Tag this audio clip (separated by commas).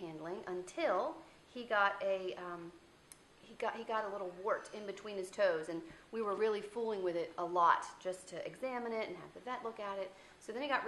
Speech